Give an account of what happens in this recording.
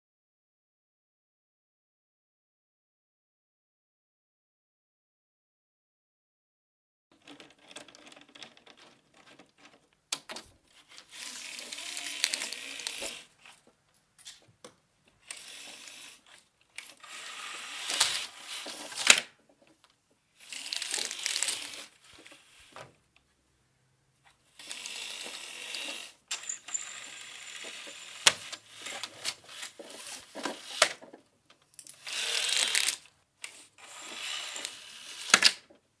Window opened and footsteps heard.